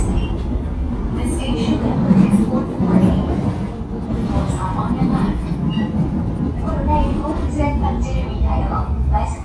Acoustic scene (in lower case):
subway train